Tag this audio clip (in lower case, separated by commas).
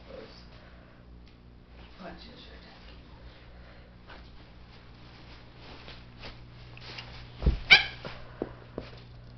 speech, animal, pets